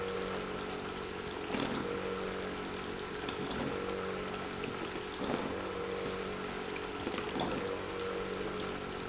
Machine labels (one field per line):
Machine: pump